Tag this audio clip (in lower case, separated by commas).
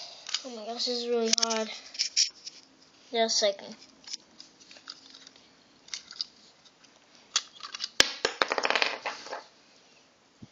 speech